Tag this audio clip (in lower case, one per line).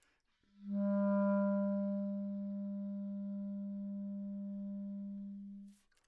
musical instrument
woodwind instrument
music